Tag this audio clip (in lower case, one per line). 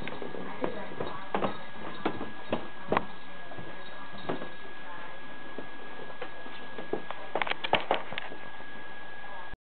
speech